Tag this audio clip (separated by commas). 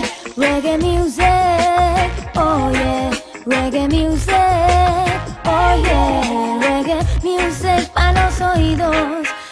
Independent music, Music